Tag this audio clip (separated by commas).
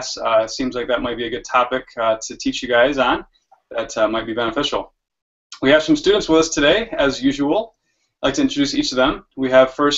Speech